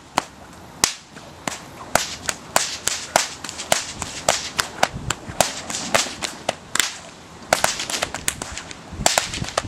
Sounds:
whip

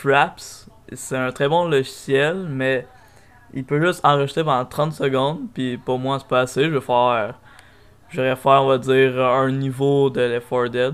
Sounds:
speech

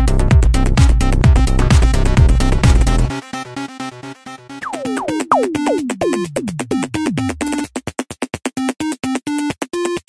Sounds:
trance music

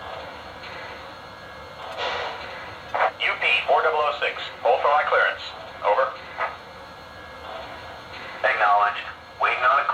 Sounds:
speech

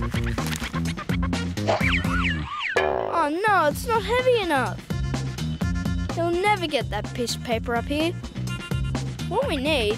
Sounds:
speech, outside, urban or man-made, music

